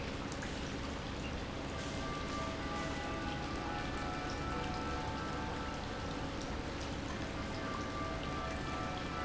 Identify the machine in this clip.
pump